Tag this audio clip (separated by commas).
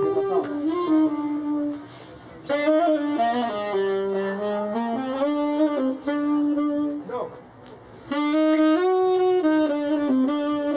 Speech, Music